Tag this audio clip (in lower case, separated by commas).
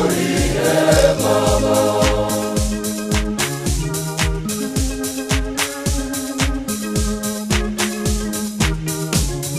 choir, music, gospel music, singing